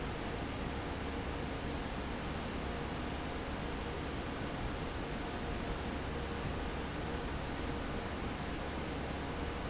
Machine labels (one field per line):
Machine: fan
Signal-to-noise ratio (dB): -6 dB